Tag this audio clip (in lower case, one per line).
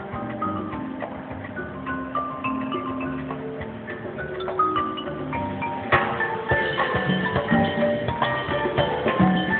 music
percussion